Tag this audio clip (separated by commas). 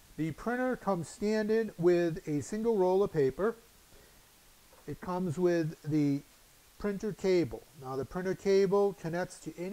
Speech